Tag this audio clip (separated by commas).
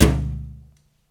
thud